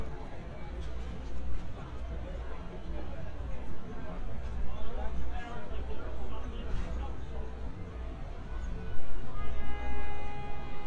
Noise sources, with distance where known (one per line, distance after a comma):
car horn, far
music from an unclear source
person or small group talking, near